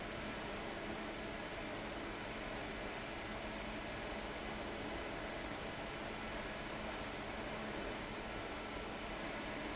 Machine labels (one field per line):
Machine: fan